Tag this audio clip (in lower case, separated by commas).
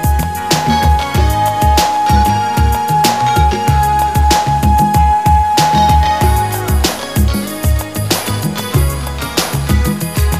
pop music, music